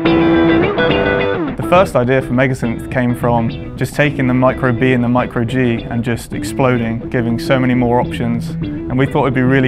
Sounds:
Plucked string instrument, Speech, Musical instrument, Electric guitar, Guitar, Music

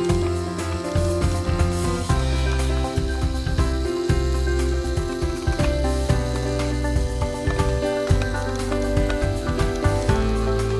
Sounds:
Vehicle, Music

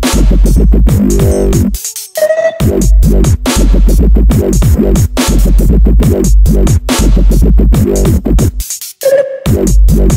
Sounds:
Dubstep, Music

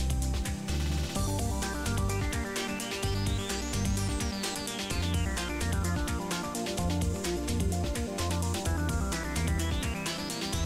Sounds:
Music

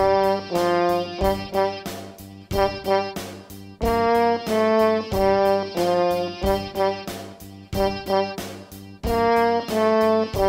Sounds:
playing french horn

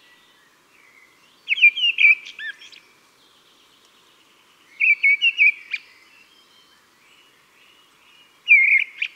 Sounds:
wood thrush calling

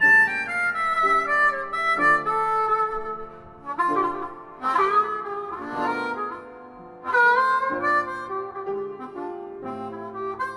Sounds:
Harmonica, woodwind instrument

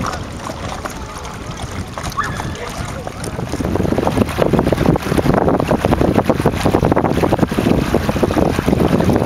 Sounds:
sailing ship, canoe, Speech, kayak rowing, Vehicle, Boat

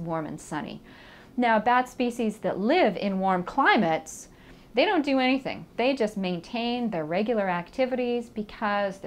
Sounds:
Speech

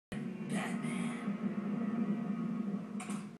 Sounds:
Speech

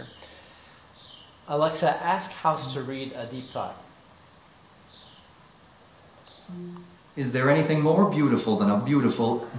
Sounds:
Speech

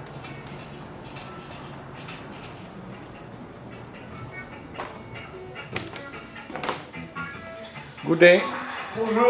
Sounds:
Music, Speech

